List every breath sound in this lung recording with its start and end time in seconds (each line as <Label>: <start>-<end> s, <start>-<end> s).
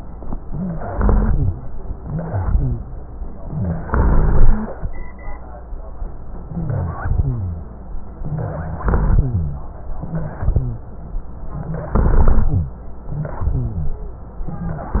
Inhalation: 0.49-1.54 s, 1.99-2.83 s, 3.79-4.76 s, 6.49-7.48 s, 8.23-9.28 s, 10.11-10.89 s, 11.94-12.79 s, 13.43-14.29 s
Wheeze: 0.46-0.82 s, 0.87-1.48 s, 1.99-2.83 s, 3.45-3.81 s, 3.89-4.67 s, 6.51-7.00 s, 8.23-8.80 s, 10.11-10.89 s
Rhonchi: 7.00-7.74 s, 8.84-9.70 s, 11.94-12.79 s, 13.43-14.29 s